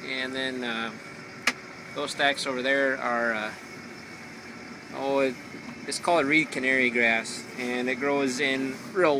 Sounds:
Speech

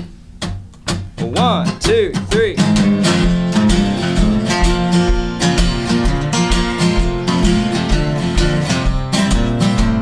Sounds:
Speech, Music

